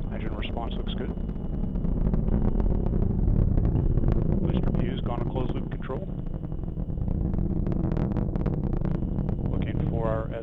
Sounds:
missile launch

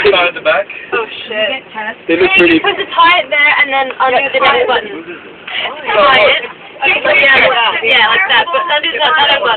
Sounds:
Speech

